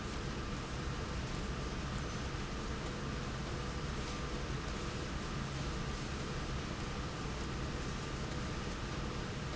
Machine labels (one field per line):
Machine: slide rail